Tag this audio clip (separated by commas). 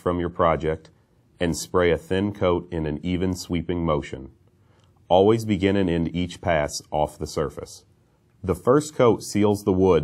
Speech